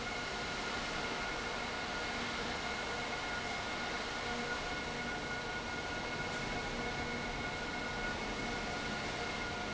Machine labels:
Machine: fan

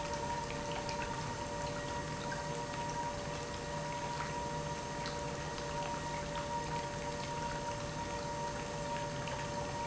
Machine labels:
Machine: pump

